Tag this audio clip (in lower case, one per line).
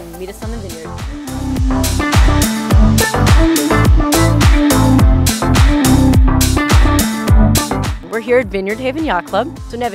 music
speech